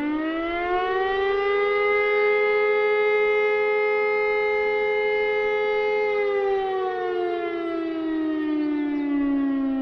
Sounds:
civil defense siren

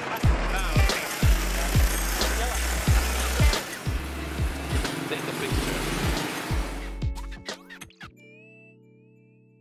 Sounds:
Music, Speech

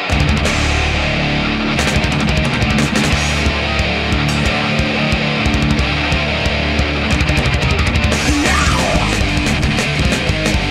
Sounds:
Music, Cacophony

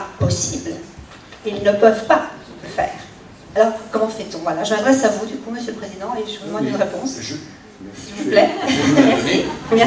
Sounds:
Speech

